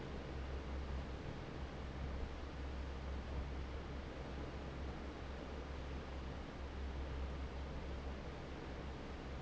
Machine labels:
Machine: fan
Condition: normal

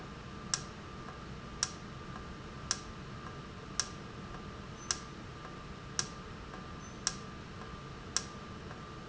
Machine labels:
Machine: valve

